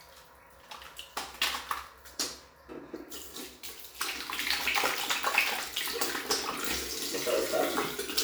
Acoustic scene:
restroom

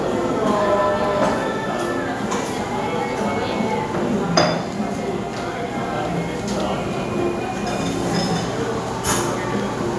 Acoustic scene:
cafe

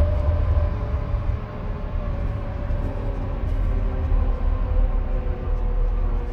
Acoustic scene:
car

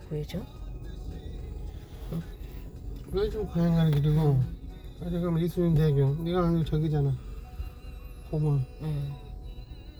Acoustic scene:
car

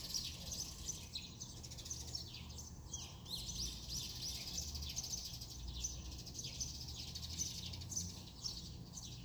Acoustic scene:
residential area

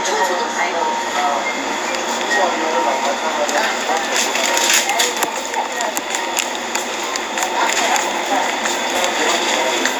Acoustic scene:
crowded indoor space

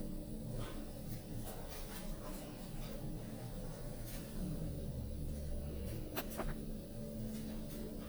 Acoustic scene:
elevator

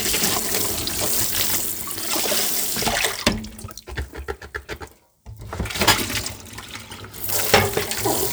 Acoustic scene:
kitchen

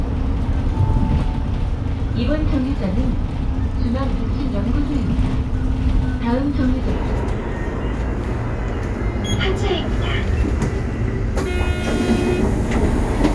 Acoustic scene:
bus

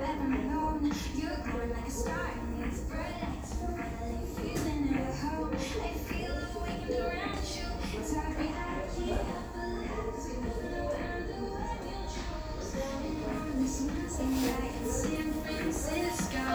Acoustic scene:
crowded indoor space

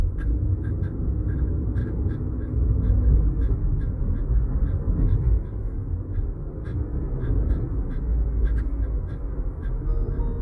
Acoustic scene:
car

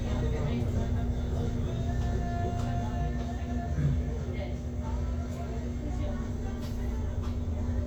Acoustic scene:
bus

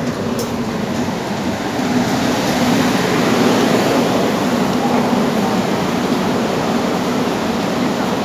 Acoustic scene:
subway station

